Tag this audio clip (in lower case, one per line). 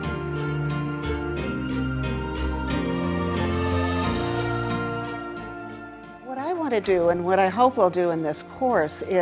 speech
music